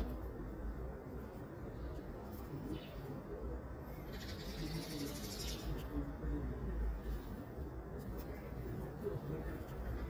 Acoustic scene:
residential area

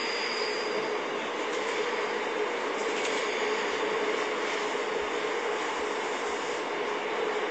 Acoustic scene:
subway train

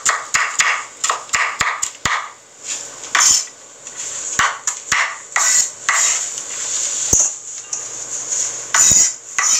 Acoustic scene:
kitchen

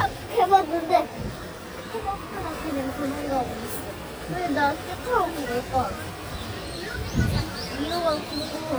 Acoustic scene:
residential area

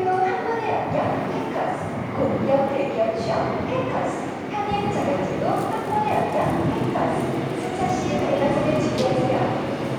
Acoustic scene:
subway station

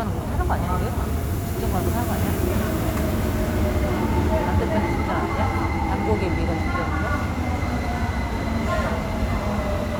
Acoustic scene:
subway station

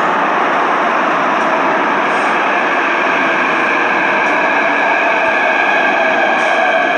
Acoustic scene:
subway station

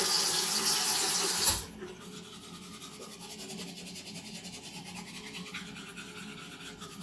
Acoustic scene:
restroom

